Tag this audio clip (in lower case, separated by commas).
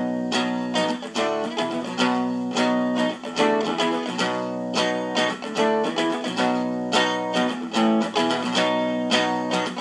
music